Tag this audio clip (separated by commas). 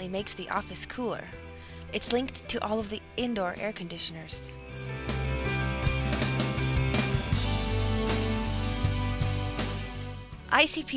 Speech, Music